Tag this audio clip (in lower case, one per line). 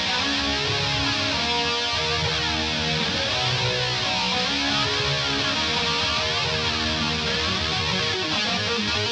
music